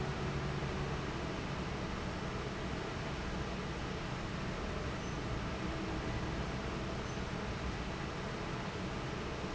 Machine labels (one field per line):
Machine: fan